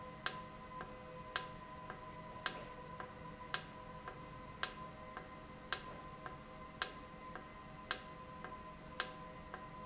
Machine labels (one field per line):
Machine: valve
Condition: normal